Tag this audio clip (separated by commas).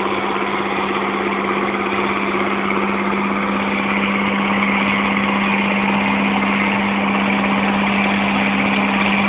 Vehicle, Medium engine (mid frequency), Engine